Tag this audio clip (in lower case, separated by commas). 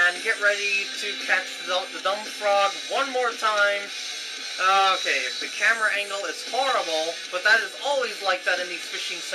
speech, music